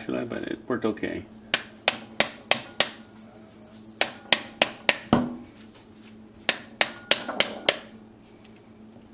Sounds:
inside a small room
speech

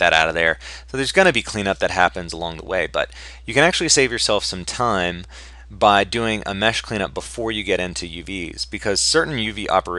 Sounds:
speech

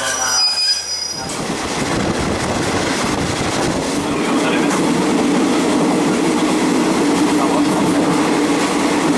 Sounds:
engine
speech

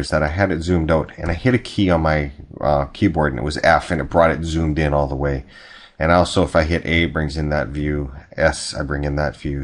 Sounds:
speech

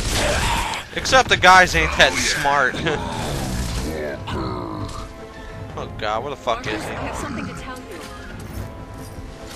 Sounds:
speech
music

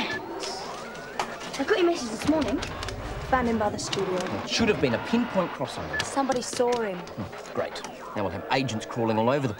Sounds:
speech

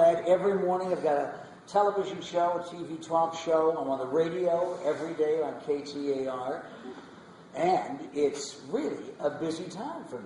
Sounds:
speech
inside a large room or hall

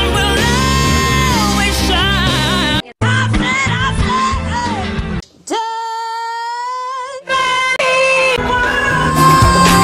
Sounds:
music
song
singing
yell
rock music
pop music

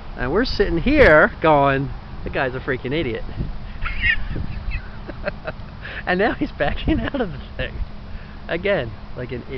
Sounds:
vehicle
speech

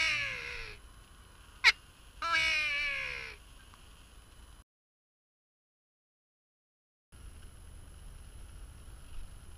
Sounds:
caw

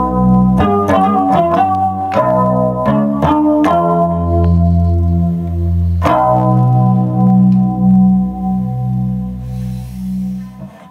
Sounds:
plucked string instrument
music
musical instrument

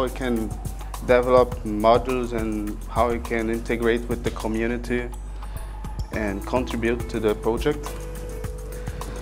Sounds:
speech
music

